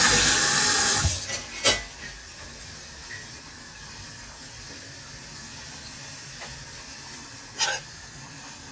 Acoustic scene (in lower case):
kitchen